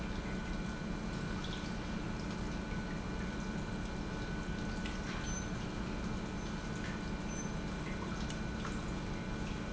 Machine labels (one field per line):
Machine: pump